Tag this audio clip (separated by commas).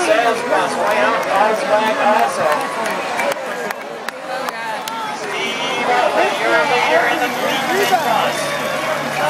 Vehicle, Bus, Speech